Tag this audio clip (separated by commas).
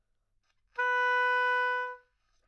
woodwind instrument, Music, Musical instrument